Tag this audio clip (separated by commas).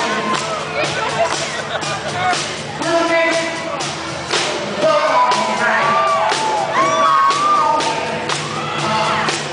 Singing, Thump, Orchestra